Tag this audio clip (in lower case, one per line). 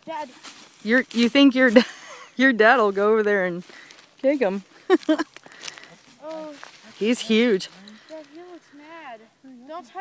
speech